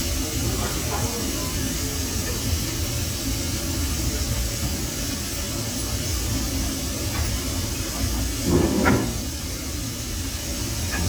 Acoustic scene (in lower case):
crowded indoor space